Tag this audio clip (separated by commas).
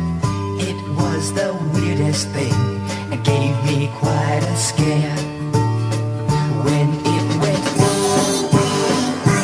Music